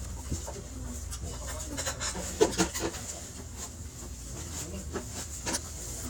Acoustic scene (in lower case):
restaurant